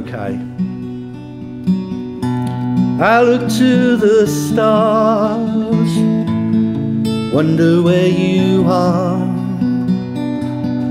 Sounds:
music
speech

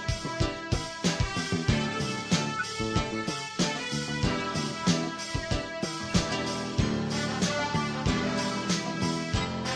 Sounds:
music

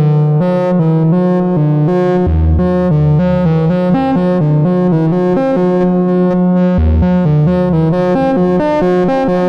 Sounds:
music

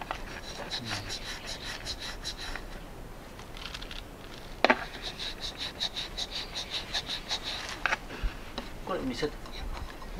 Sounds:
dishes, pots and pans
cutlery

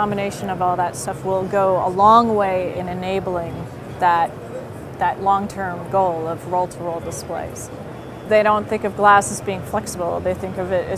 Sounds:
speech

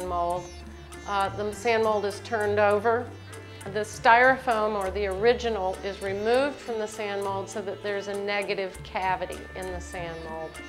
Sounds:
music
speech

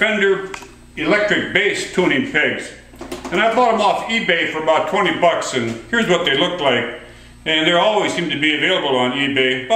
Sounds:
speech

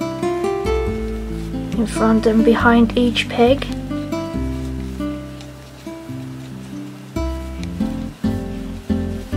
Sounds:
music
speech

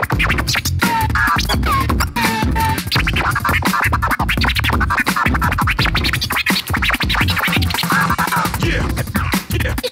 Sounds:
scratching (performance technique)
music

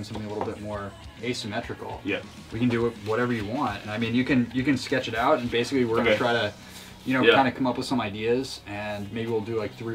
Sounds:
music
speech

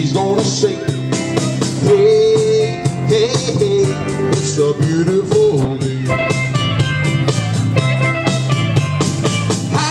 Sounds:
funk
music of latin america
soul music
rhythm and blues
ska
music

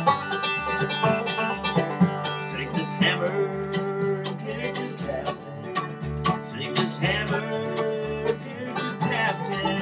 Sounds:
music
banjo

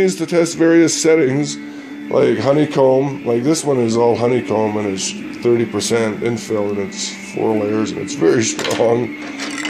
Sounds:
music
speech

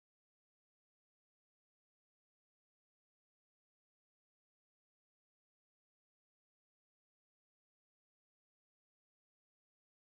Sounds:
silence

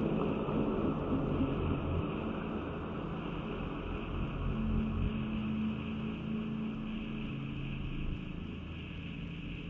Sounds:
music

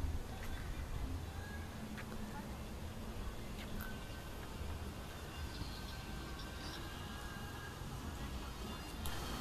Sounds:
footsteps
music

